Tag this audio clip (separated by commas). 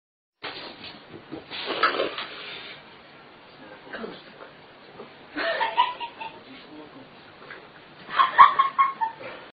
Speech